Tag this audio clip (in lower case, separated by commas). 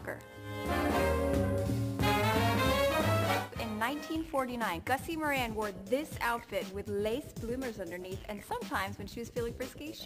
jazz